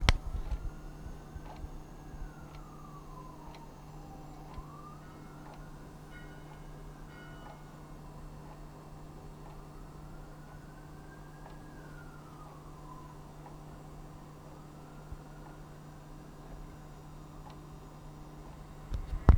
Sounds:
clock
mechanisms

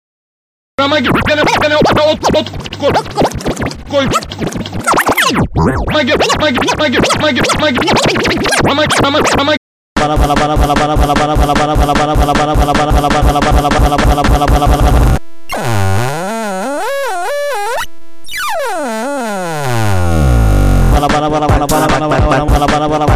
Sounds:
music
musical instrument
scratching (performance technique)

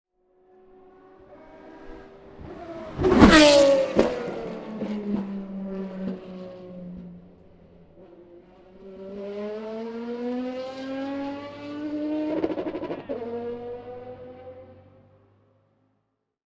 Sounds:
accelerating
vehicle
car
race car
motor vehicle (road)
engine

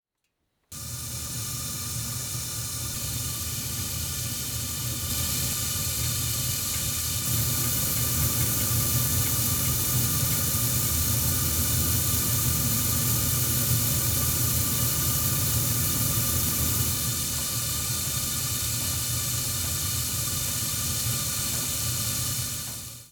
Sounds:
fire

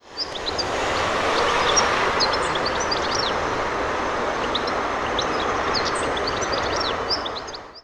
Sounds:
wild animals
animal
bird

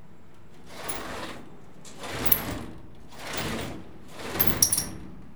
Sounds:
door
sliding door
home sounds

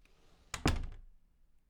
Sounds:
slam
door
domestic sounds

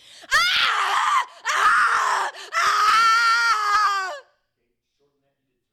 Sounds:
screaming
human voice

